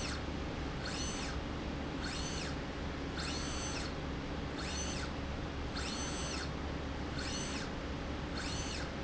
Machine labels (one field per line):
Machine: slide rail